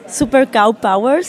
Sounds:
Human voice, Speech

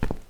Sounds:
footsteps

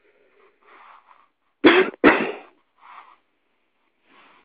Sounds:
Cough, Respiratory sounds

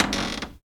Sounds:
home sounds, Cupboard open or close

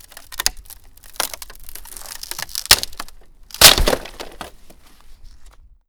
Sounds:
Wood, Crack

